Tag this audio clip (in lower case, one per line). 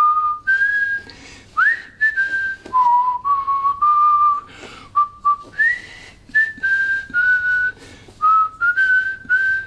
whistling
people whistling